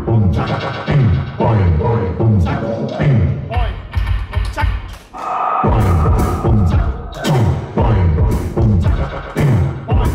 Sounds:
music
soundtrack music

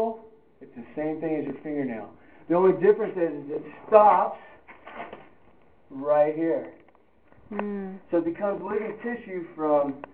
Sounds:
speech

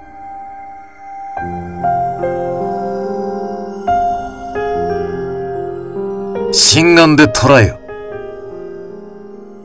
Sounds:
speech
music

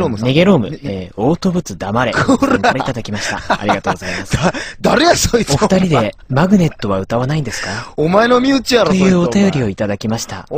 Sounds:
speech

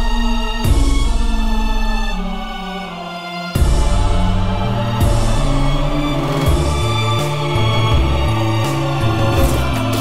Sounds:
music

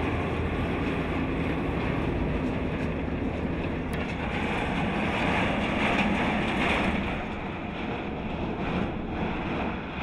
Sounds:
truck
vehicle

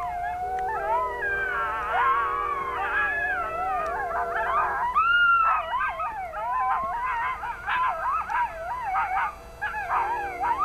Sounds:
coyote howling

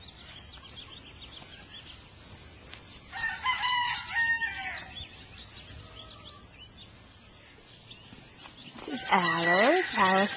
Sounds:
livestock

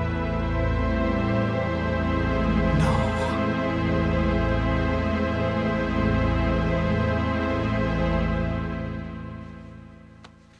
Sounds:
background music

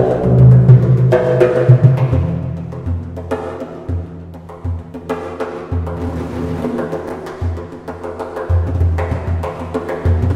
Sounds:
drum
percussion

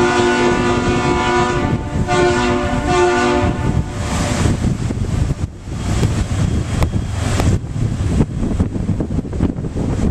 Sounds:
wind
boat
surf
wind noise (microphone)
ship

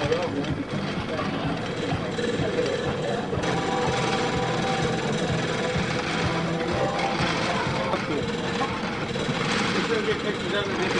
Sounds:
speech
music

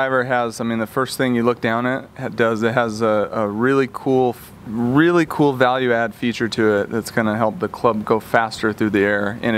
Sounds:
speech

